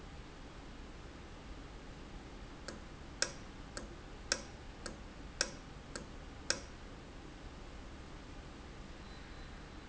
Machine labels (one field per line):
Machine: valve